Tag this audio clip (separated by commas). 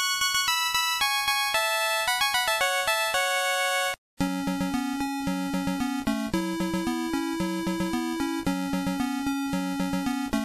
Video game music, Music